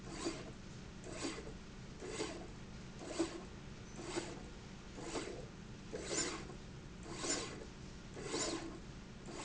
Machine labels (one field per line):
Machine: slide rail